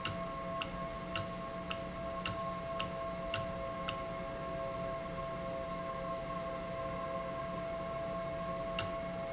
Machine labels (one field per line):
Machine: valve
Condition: normal